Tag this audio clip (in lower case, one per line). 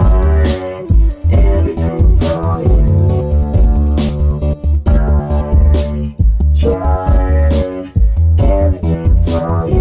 music
electronic music